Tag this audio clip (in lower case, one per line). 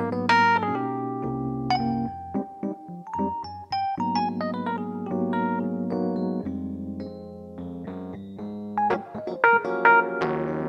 keyboard (musical)
piano
electric piano
musical instrument
music